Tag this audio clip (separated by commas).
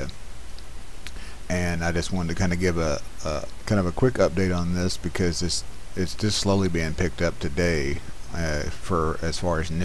Speech